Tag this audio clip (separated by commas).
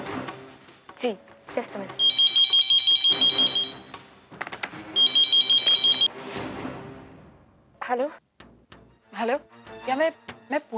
Music, Speech